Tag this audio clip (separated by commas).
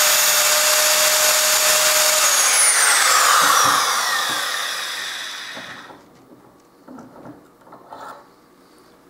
Speech, Tools